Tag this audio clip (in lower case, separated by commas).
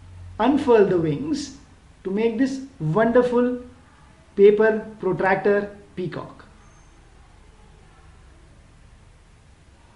speech